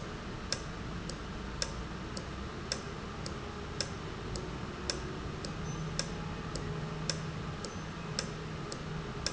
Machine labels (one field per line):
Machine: valve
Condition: normal